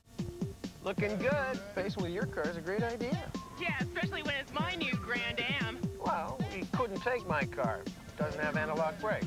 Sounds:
music, speech

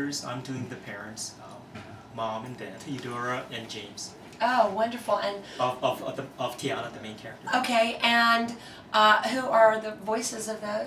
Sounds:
speech

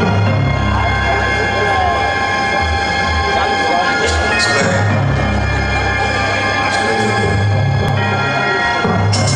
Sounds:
music, speech

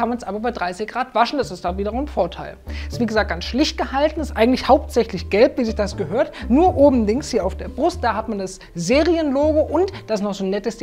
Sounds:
speech, music

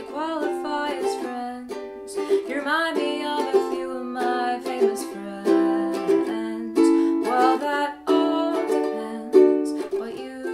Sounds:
singing, inside a small room, ukulele, music

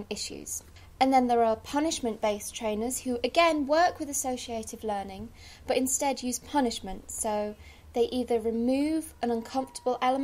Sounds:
speech

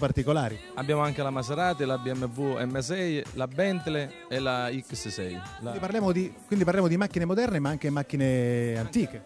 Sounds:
speech, music

